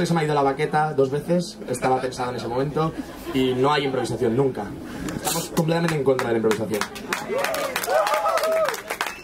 A man speaking and a crowd clapping and cheering